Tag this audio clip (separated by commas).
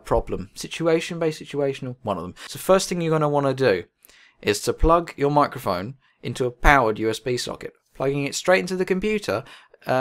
Speech